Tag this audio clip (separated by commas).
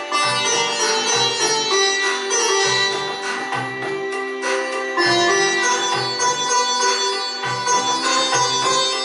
Keyboard (musical), Sitar, Music